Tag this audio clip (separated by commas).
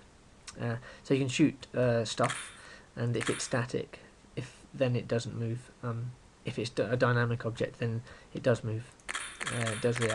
Speech